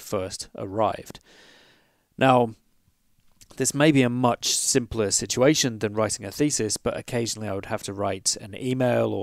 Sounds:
speech

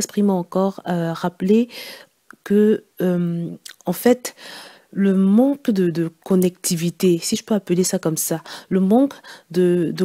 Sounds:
speech

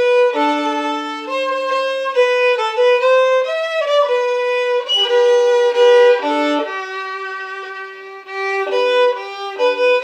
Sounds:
music, fiddle, musical instrument

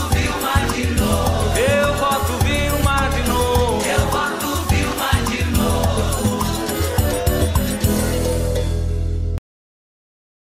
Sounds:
music

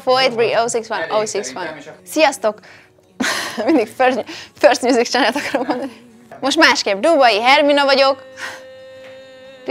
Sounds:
speech

